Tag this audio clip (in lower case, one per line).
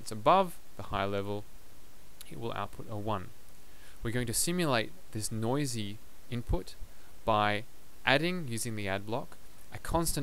speech